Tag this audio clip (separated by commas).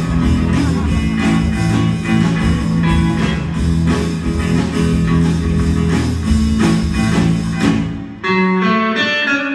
Violin, Music, Musical instrument